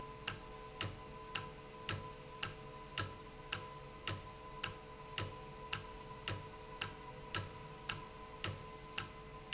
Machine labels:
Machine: valve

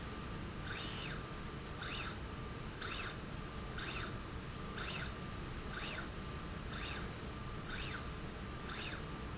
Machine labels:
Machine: slide rail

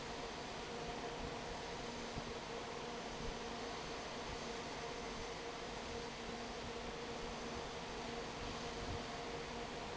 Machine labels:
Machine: fan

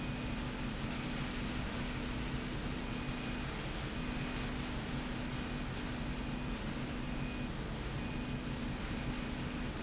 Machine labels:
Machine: slide rail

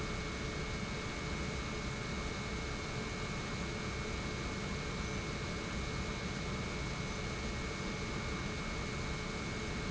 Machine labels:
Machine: pump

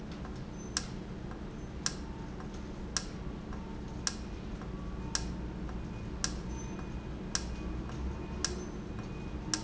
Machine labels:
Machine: valve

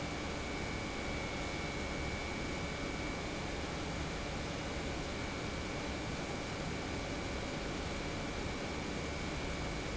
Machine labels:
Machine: pump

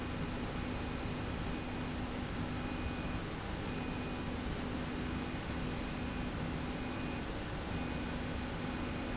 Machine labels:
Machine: slide rail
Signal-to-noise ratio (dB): -6 dB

